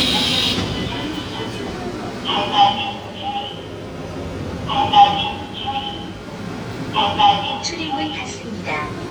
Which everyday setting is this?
subway train